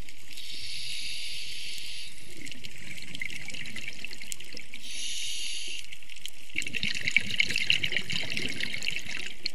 Water is gurgling and intermittent hissing is occurring